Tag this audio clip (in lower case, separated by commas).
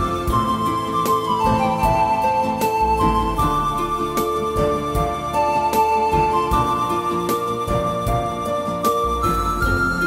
music